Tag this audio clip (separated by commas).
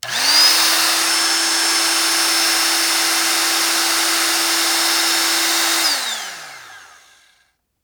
home sounds